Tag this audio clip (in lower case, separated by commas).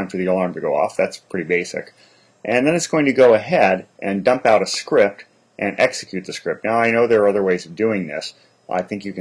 speech